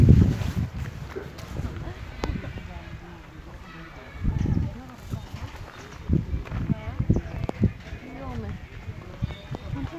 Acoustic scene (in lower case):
park